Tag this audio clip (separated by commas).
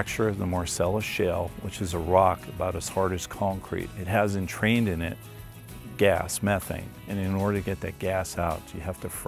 Music, Speech